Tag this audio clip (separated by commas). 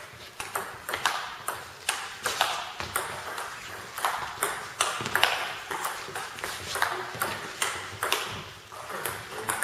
playing table tennis